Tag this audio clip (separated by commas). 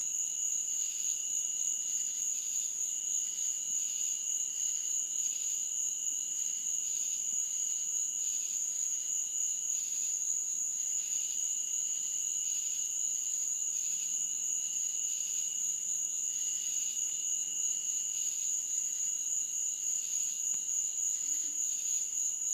Wild animals, Insect, Frog, Cricket, Animal